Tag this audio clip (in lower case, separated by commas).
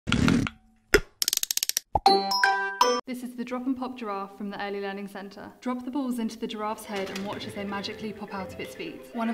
speech, music